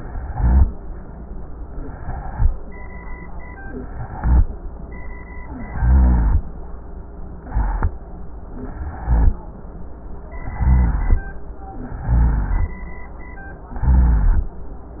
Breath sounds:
Inhalation: 0.00-0.76 s, 1.88-2.47 s, 3.83-4.42 s, 5.67-6.45 s, 7.32-7.93 s, 8.75-9.37 s, 10.57-11.33 s, 12.03-12.87 s, 13.77-14.61 s
Rhonchi: 0.00-0.76 s, 1.88-2.47 s, 3.83-4.42 s, 5.67-6.45 s, 7.32-7.93 s, 8.75-9.37 s, 10.57-11.33 s, 12.03-12.87 s, 13.77-14.61 s

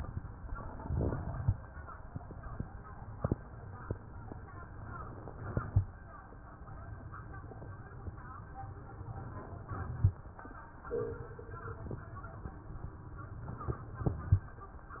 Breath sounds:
No breath sounds were labelled in this clip.

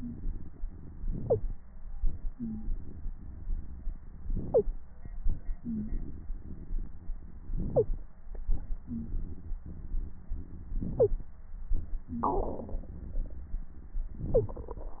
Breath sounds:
Inhalation: 1.04-1.56 s, 4.25-4.76 s, 7.55-8.06 s, 10.80-11.31 s, 14.15-14.67 s
Exhalation: 1.97-3.99 s, 5.26-7.14 s, 8.37-10.27 s, 11.73-14.06 s
Wheeze: 2.37-2.73 s, 5.64-5.90 s, 8.88-9.09 s, 12.06-12.27 s

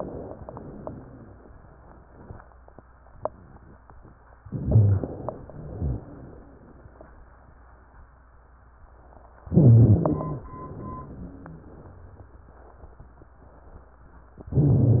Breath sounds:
Inhalation: 4.44-5.44 s, 9.46-10.46 s
Exhalation: 5.48-6.49 s, 10.48-11.73 s
Wheeze: 9.48-10.44 s, 10.54-11.67 s
Rhonchi: 4.44-5.14 s, 5.50-6.04 s

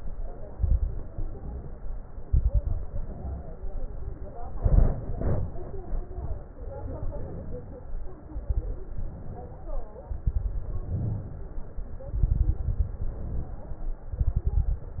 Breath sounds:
Inhalation: 1.12-2.18 s, 3.16-4.39 s, 6.52-7.81 s, 8.94-9.97 s, 10.99-12.03 s, 13.02-14.06 s
Exhalation: 0.55-1.10 s, 2.22-2.90 s, 4.58-5.51 s, 8.40-8.94 s, 10.24-10.99 s, 12.10-12.93 s, 14.18-15.00 s
Crackles: 0.55-1.10 s, 2.22-2.90 s, 4.58-5.51 s, 8.40-8.94 s, 10.24-10.99 s, 12.10-12.93 s, 14.18-15.00 s

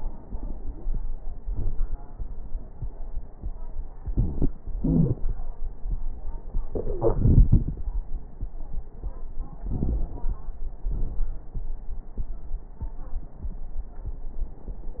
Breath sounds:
Inhalation: 9.66-10.46 s
Exhalation: 10.88-11.36 s
Wheeze: 4.78-5.15 s
Crackles: 9.66-10.46 s

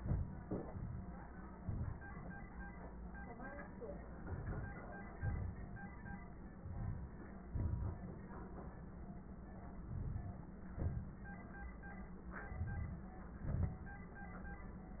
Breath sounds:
Inhalation: 0.00-0.41 s, 1.50-2.09 s, 4.16-5.09 s, 6.59-7.48 s, 9.71-10.53 s, 12.28-13.28 s
Exhalation: 0.42-1.35 s, 5.11-6.59 s, 7.49-8.72 s, 10.51-11.51 s, 13.26-14.08 s
Crackles: 1.50-2.09 s, 7.49-8.72 s, 9.71-10.53 s, 12.29-13.28 s, 13.30-14.06 s

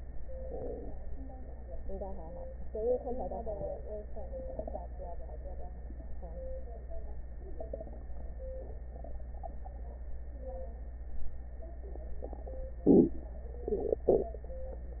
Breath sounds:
No breath sounds were labelled in this clip.

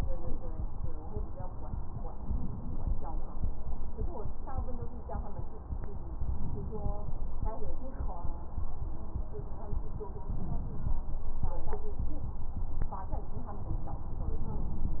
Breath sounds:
Inhalation: 2.10-3.04 s, 6.24-7.32 s, 10.30-10.94 s, 14.10-15.00 s

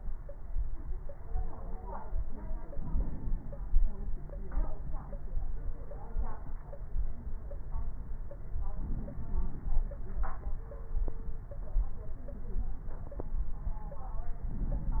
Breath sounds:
Inhalation: 2.72-3.80 s, 8.75-9.84 s, 14.51-15.00 s

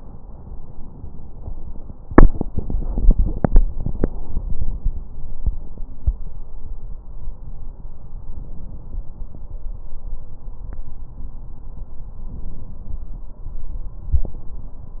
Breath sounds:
No breath sounds were labelled in this clip.

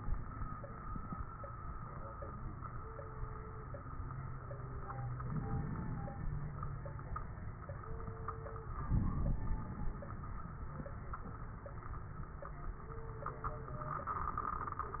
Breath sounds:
Inhalation: 5.17-6.46 s, 8.88-9.93 s
Crackles: 5.17-6.46 s, 8.88-9.93 s

